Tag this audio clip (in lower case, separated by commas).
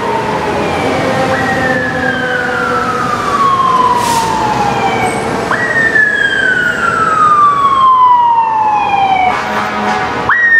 vehicle, emergency vehicle, car